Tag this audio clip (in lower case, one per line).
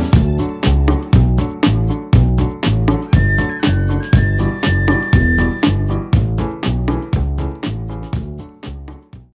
music